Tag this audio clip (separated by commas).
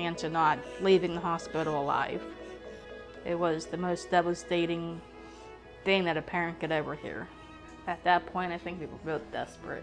Speech, Music